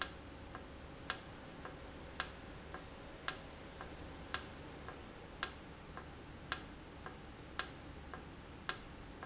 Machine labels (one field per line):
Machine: valve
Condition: normal